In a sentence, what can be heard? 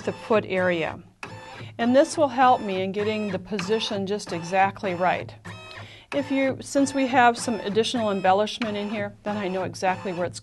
Female speaking with sewing machine running in the background